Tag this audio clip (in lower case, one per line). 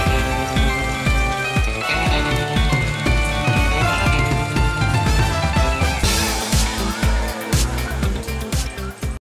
music